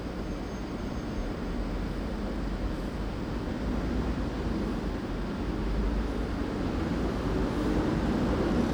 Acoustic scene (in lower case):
residential area